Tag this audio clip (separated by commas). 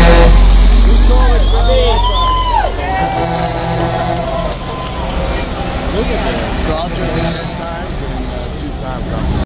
Vehicle, Speech, Truck